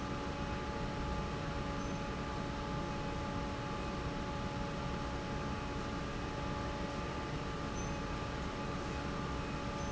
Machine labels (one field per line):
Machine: fan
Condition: normal